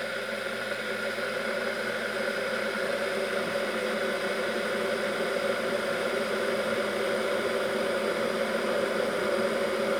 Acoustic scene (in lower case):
kitchen